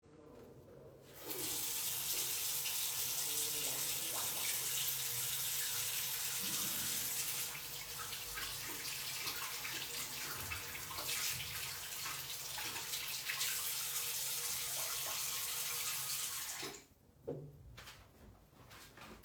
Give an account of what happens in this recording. I opened and then closed a tap and left the room